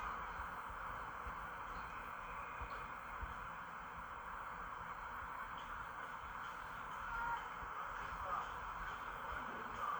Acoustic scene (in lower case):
park